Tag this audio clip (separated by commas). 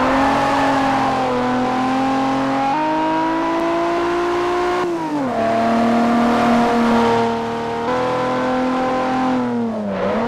Motor vehicle (road), Vehicle, Car, Car passing by